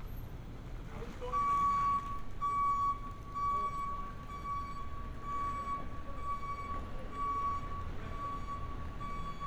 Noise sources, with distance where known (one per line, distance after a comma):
reverse beeper, near